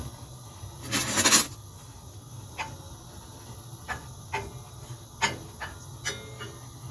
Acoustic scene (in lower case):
kitchen